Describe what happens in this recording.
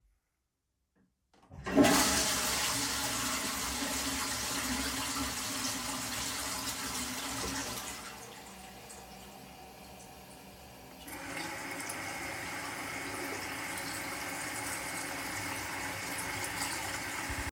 I flushed the toilet and shortly after turned on the water tap.